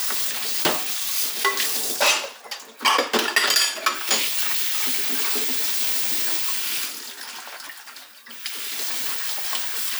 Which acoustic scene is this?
kitchen